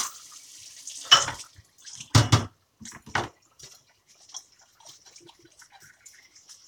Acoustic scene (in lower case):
kitchen